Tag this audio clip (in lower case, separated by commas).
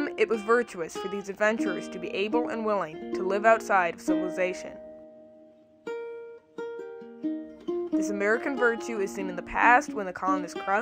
ukulele, speech, music